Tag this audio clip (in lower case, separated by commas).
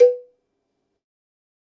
bell, cowbell